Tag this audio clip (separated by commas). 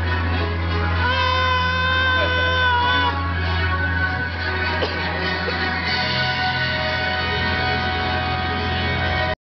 Music